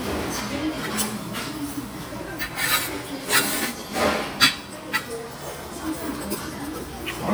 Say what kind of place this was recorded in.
restaurant